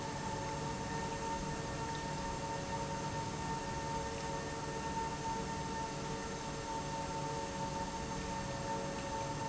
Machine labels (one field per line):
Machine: pump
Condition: normal